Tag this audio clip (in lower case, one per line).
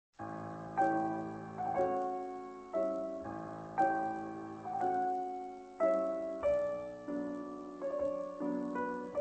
piano